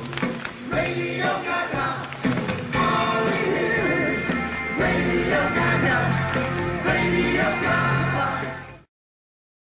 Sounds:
Music

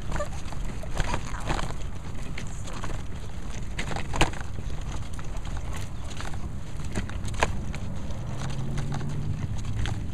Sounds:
footsteps

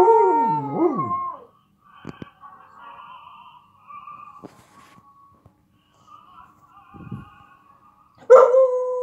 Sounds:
dog howling

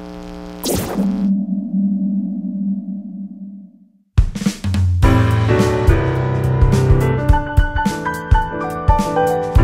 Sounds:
Keyboard (musical), Musical instrument, Piano, Sonar, Music

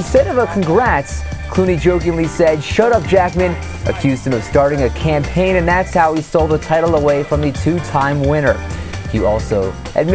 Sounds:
Speech, Music

